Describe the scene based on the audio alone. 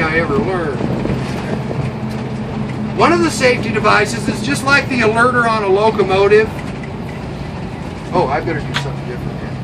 An adult male speaks and a large motor vehicle engine is running